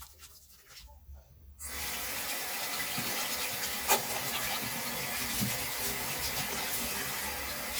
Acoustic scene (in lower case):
restroom